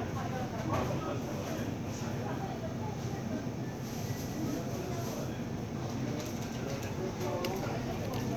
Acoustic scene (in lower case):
crowded indoor space